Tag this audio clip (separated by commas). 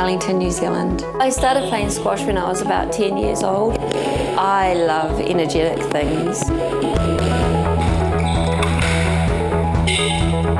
playing squash